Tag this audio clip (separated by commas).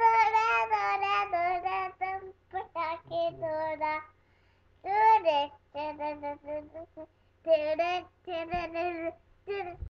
Child singing